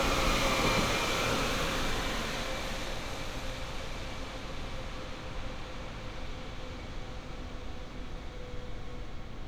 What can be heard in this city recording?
small or medium rotating saw